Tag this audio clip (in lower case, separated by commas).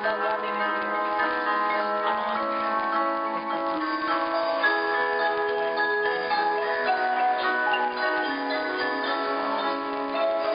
music, percussion